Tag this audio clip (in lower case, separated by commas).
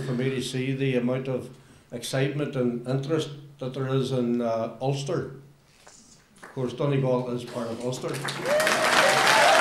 monologue, male speech, speech